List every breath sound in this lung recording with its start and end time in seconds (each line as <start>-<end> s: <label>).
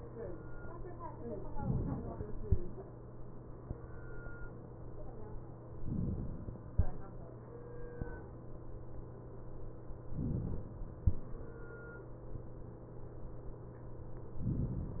1.50-2.45 s: inhalation
5.75-6.70 s: inhalation
10.10-11.05 s: inhalation